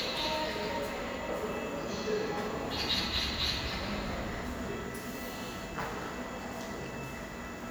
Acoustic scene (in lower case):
subway station